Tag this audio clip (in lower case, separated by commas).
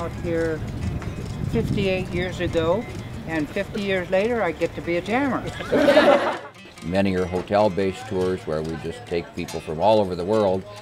speech, music